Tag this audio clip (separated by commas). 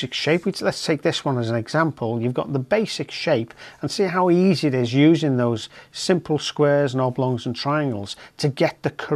Speech